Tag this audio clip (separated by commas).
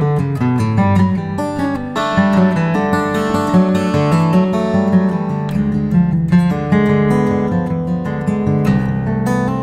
Guitar, Acoustic guitar, Musical instrument, Music